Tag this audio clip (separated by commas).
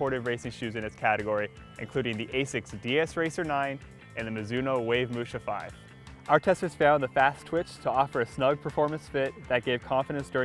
Speech, Music